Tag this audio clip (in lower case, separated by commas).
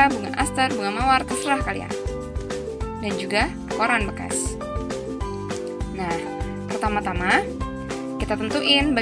speech, music